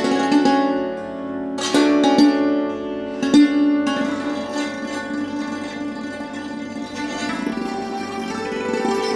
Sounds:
classical music, musical instrument, bowed string instrument, music

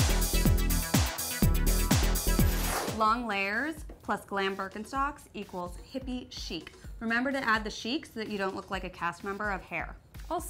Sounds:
speech, music

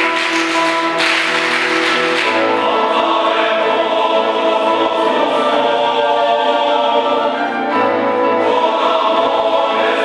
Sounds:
choir, singing, music

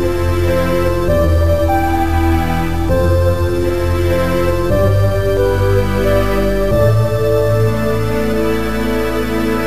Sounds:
music, soundtrack music

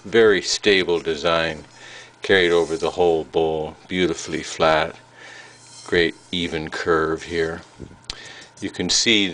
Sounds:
speech

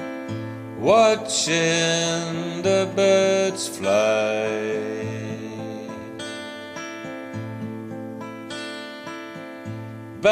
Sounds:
music

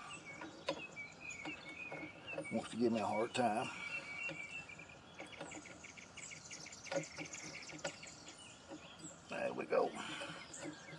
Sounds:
bird call, tweet, bird

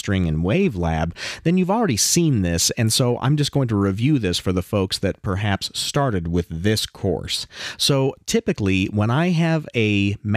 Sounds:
speech

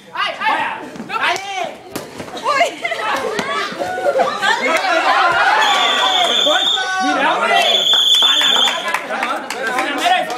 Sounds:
playing volleyball

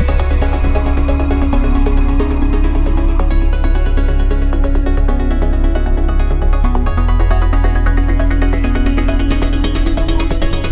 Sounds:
music

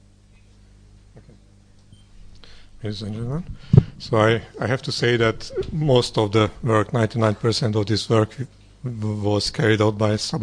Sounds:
speech

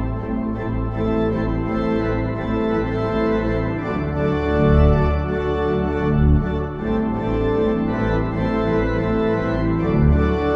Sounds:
playing electronic organ

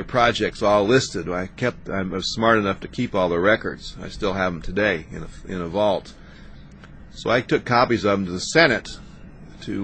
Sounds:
speech

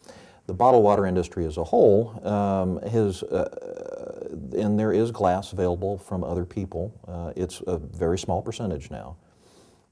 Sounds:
speech

